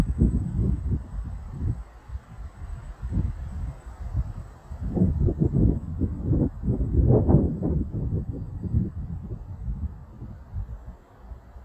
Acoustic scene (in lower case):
residential area